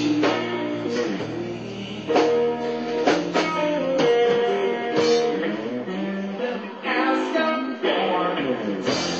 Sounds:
Music, Blues

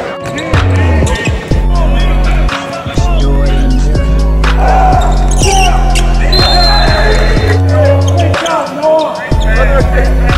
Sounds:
Speech, Music, speech noise

